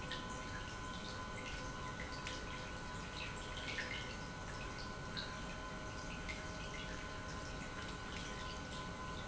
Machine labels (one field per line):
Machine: pump